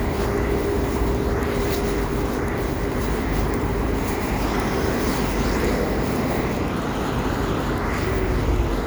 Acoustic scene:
street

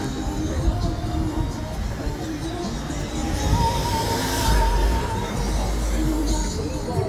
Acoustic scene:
street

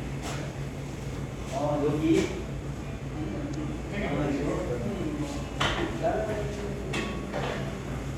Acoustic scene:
cafe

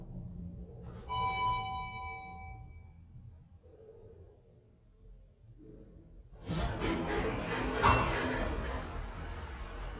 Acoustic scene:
elevator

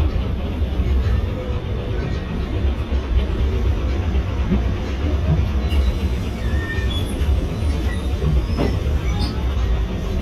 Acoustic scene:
bus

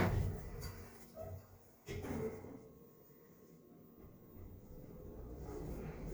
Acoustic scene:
elevator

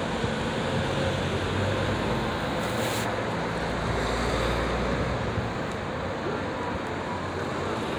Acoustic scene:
street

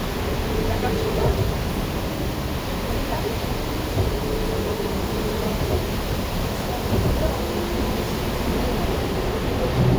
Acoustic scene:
bus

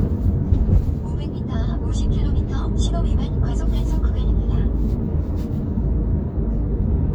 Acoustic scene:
car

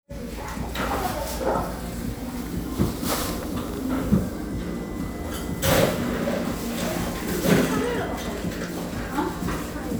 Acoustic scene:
cafe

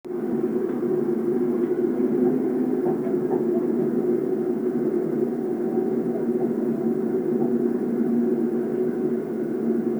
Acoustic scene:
subway train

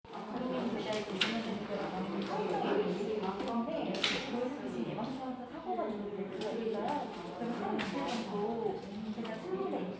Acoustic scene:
crowded indoor space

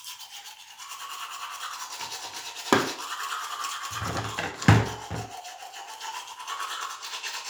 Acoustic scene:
restroom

